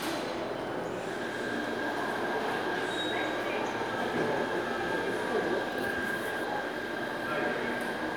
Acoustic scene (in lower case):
subway station